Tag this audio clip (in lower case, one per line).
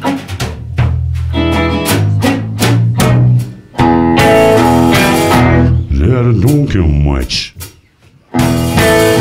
speech
music
musical instrument